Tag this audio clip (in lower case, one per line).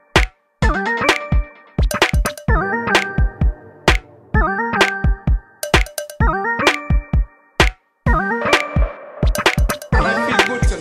music